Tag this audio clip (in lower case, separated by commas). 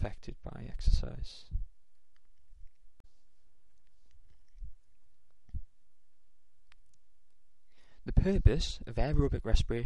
speech